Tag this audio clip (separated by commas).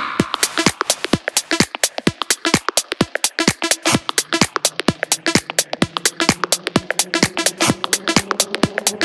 Drum machine, Music, Musical instrument